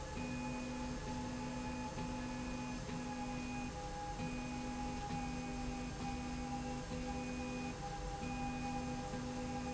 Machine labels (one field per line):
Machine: slide rail